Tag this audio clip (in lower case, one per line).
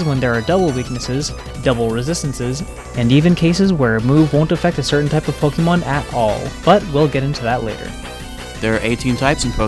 music
speech